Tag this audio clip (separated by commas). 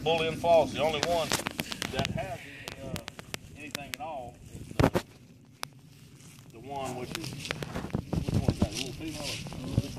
Speech, outside, rural or natural